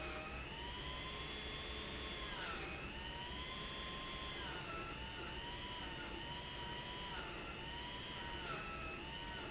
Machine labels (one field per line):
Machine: pump